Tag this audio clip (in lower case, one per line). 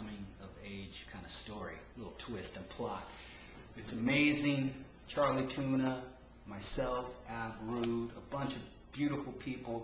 speech